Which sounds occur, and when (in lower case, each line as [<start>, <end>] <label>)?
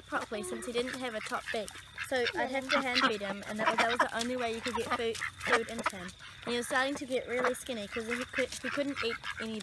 [0.00, 1.65] child speech
[0.00, 2.11] quack
[0.00, 9.62] cricket
[1.18, 1.86] generic impact sounds
[2.08, 3.29] child speech
[2.29, 7.57] quack
[3.43, 5.11] child speech
[4.07, 4.34] generic impact sounds
[5.08, 5.95] generic impact sounds
[5.42, 6.07] child speech
[6.48, 9.62] child speech
[7.82, 9.44] quack